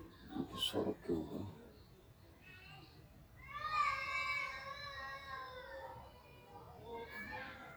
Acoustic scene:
park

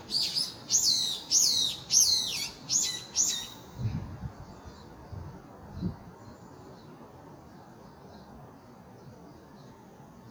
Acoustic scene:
park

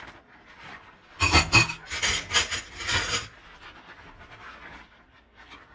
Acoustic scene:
kitchen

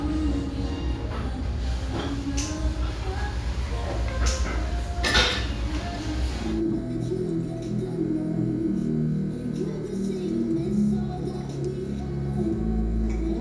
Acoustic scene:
restaurant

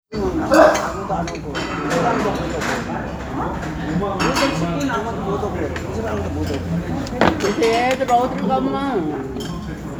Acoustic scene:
restaurant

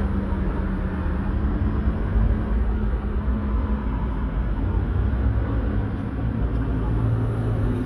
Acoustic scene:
street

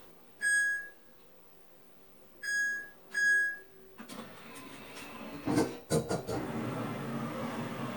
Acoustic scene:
kitchen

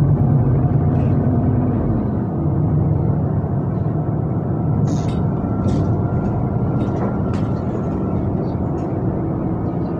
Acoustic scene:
bus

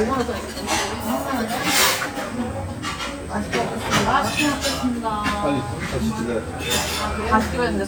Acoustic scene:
restaurant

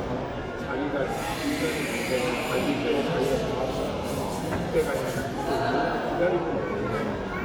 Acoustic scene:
crowded indoor space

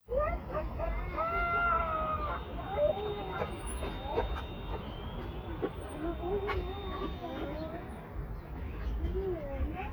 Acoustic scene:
residential area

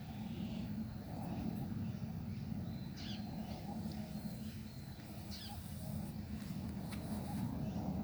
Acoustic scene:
park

